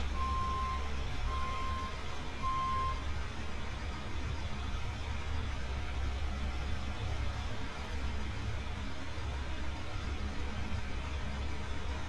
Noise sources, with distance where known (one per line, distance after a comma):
large-sounding engine
reverse beeper, near